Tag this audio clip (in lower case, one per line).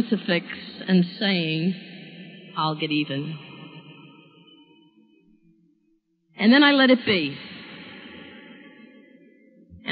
monologue